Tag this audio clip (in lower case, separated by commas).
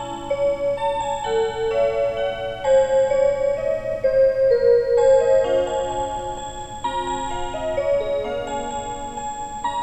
music